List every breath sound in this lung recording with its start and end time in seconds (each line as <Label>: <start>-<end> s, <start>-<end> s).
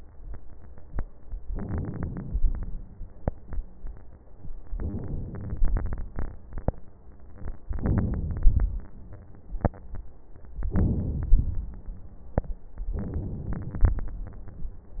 Inhalation: 1.50-3.00 s, 4.71-6.21 s, 7.67-9.07 s, 10.60-12.01 s, 12.99-14.22 s